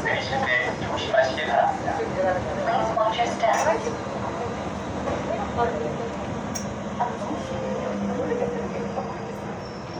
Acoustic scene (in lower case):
subway train